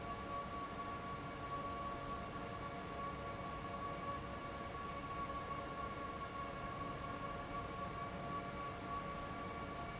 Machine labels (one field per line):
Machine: fan